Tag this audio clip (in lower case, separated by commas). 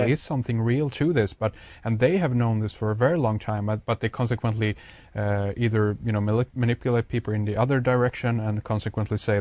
speech